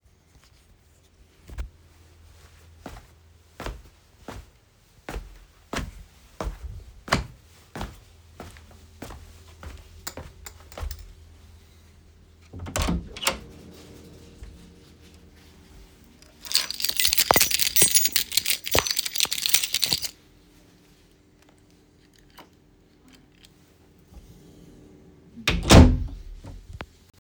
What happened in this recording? I approached a room, opened the doors, used a keys.